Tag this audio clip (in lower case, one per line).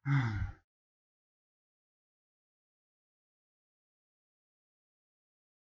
sigh
human voice